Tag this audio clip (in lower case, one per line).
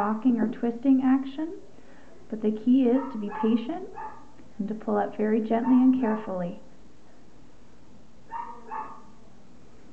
speech